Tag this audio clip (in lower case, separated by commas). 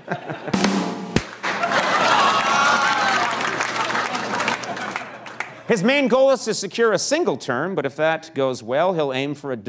drum, snare drum, rimshot, percussion